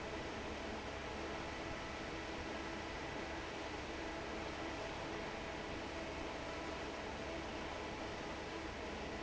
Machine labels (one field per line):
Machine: fan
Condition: normal